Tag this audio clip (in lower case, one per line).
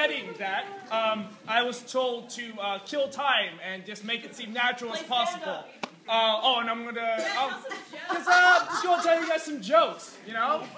speech